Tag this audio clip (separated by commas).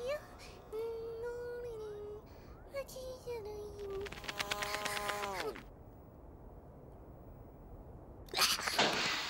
housefly, Insect, Mosquito